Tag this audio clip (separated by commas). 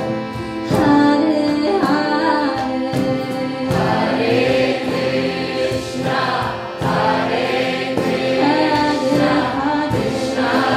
Bowed string instrument, Choir, Acoustic guitar, Music, Music of Asia, Singing, Musical instrument, Guitar, Female singing, inside a large room or hall